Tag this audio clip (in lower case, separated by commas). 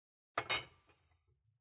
glass, clink